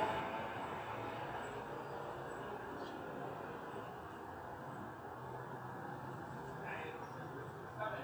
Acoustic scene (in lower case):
residential area